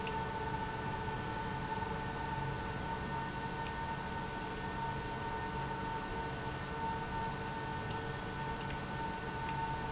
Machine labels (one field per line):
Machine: pump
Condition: abnormal